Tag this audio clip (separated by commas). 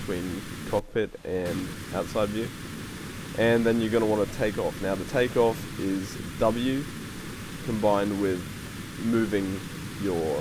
Speech